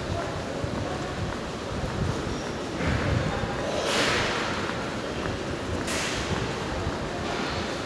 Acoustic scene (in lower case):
subway station